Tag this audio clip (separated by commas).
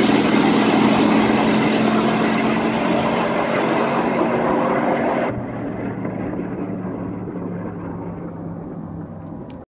Vehicle